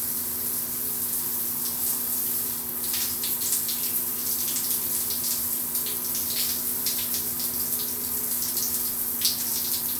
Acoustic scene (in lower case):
restroom